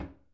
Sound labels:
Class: cupboard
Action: closing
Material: wooden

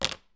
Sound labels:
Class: object falling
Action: being thrown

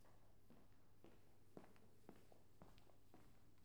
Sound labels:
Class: footsteps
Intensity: low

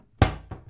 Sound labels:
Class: cupboard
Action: closing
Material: wooden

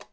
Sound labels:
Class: switch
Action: being turned on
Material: plastic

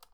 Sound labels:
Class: switch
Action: being turned on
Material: plastic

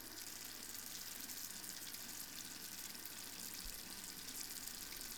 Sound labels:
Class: water tap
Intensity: high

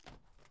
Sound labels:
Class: window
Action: opening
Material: wooden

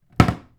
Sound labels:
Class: cupboard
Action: closing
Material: wooden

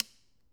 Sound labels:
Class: switch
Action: being turned on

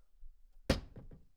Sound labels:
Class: cupboard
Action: closing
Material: wooden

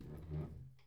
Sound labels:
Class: furniture moving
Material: wooden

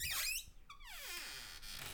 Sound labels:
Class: cupboard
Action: opening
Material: wooden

